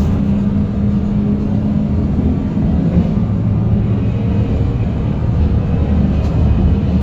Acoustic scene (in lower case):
bus